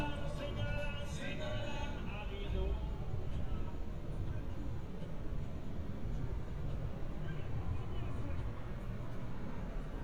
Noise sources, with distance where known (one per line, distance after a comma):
unidentified human voice, far